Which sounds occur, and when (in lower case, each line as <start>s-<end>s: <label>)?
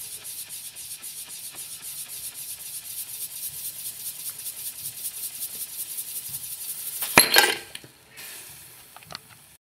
0.0s-7.0s: steam
0.1s-0.3s: generic impact sounds
0.4s-0.6s: generic impact sounds
0.7s-0.8s: generic impact sounds
0.9s-1.0s: generic impact sounds
1.2s-1.3s: generic impact sounds
1.5s-1.6s: generic impact sounds
1.7s-1.9s: generic impact sounds
2.0s-2.1s: generic impact sounds
2.3s-2.4s: generic impact sounds
2.5s-2.7s: generic impact sounds
4.2s-4.3s: generic impact sounds
5.5s-5.7s: generic impact sounds
7.0s-7.9s: shatter
8.2s-9.5s: steam
8.9s-9.4s: generic impact sounds
9.0s-9.4s: wind noise (microphone)